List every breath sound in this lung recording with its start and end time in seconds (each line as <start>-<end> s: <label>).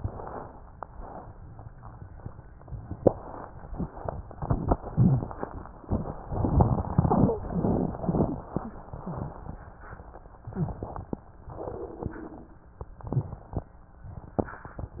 0.00-0.76 s: inhalation
0.88-2.93 s: exhalation
2.98-3.89 s: inhalation
3.92-5.79 s: exhalation
3.92-5.79 s: crackles
5.84-7.37 s: crackles
5.84-7.42 s: inhalation
7.41-9.56 s: exhalation
7.41-9.56 s: crackles